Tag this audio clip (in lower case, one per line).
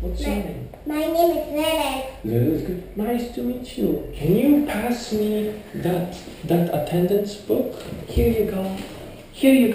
speech